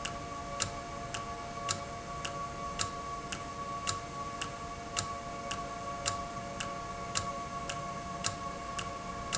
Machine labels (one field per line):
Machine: valve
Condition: normal